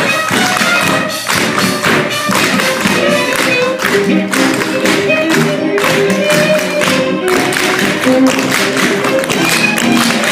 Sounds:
tap dancing

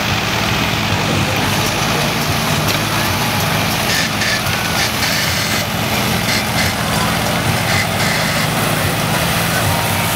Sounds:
speech

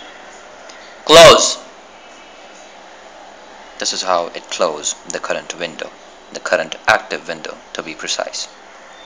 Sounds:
male speech
speech

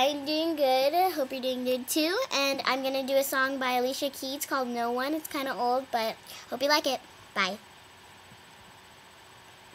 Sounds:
speech

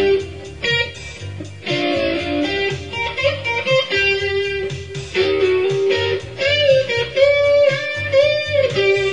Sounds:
music

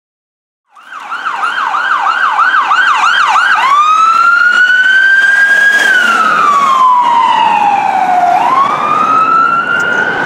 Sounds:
ambulance siren

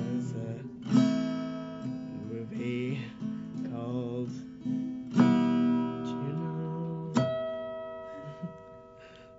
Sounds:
male singing
music

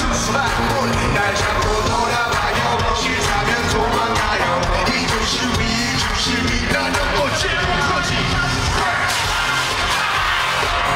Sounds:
music
crowd

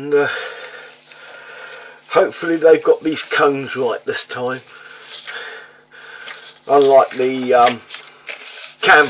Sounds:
speech
inside a small room

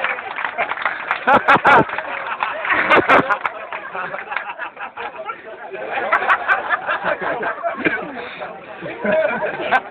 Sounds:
speech

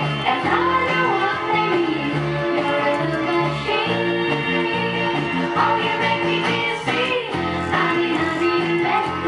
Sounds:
bass guitar
musical instrument
plucked string instrument
guitar
music
inside a small room

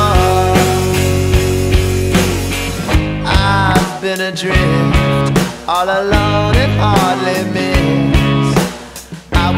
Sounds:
music

